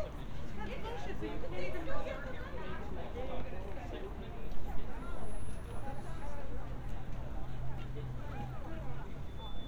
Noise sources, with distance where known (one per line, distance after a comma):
person or small group talking, near